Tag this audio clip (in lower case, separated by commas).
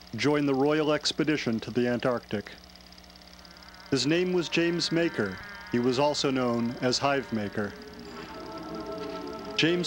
music, television, speech